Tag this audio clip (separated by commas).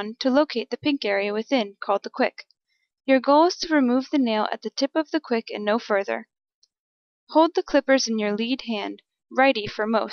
Speech